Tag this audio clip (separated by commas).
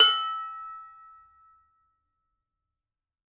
Domestic sounds, dishes, pots and pans